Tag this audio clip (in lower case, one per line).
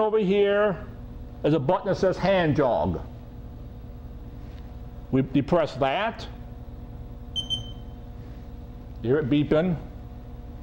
speech